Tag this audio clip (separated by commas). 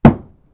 thud